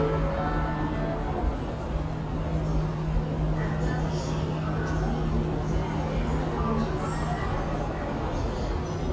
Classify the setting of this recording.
subway station